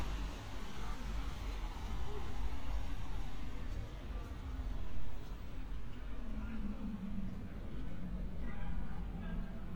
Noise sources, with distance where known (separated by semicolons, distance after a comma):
engine of unclear size, far